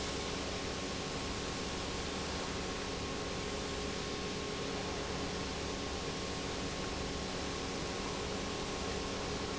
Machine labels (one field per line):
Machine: pump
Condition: normal